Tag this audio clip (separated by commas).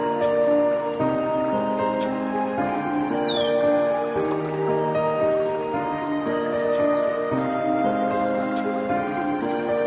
New-age music